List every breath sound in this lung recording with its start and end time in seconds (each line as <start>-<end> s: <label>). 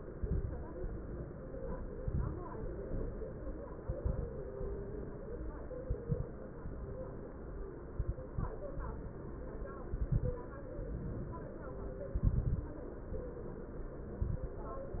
0.15-0.68 s: exhalation
0.15-0.68 s: crackles
1.98-2.50 s: exhalation
1.98-2.50 s: crackles
3.89-4.44 s: exhalation
3.89-4.44 s: crackles
5.81-6.36 s: exhalation
5.81-6.36 s: crackles
7.98-8.53 s: exhalation
7.98-8.53 s: crackles
9.88-10.43 s: exhalation
9.88-10.43 s: crackles
12.16-12.71 s: exhalation
12.16-12.71 s: crackles
14.18-14.63 s: exhalation
14.18-14.63 s: crackles